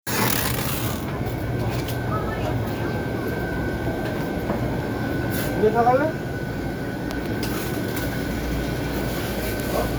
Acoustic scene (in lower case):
crowded indoor space